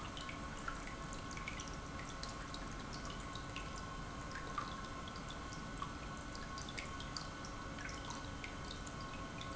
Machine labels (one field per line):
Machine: pump